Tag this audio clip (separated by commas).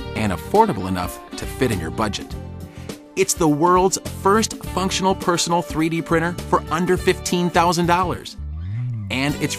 Speech, Music